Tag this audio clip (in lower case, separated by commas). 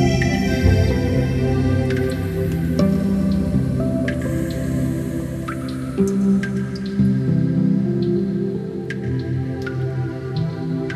music